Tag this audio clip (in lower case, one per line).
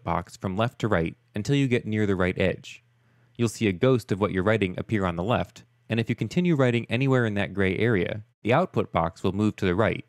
speech